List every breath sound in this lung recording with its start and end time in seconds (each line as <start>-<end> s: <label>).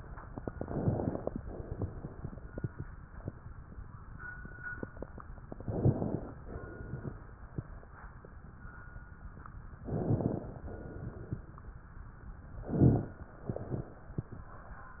0.42-1.29 s: inhalation
1.44-2.32 s: exhalation
5.48-6.36 s: inhalation
6.47-7.19 s: exhalation
9.85-10.59 s: inhalation
10.74-11.48 s: exhalation
12.64-13.34 s: inhalation
12.64-13.34 s: crackles
13.51-14.21 s: exhalation